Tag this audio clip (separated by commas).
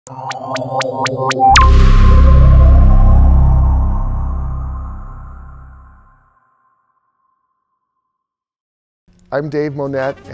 Music, Speech, Brass instrument, Trumpet, Musical instrument